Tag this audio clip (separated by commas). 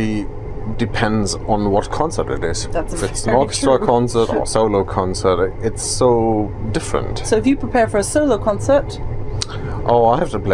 Speech